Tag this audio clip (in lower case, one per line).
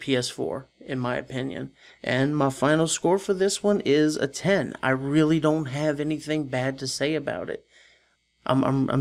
monologue
speech